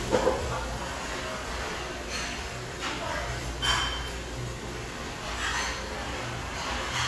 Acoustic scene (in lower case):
restaurant